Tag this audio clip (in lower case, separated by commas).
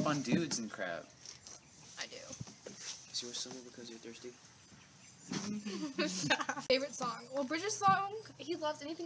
outside, urban or man-made, speech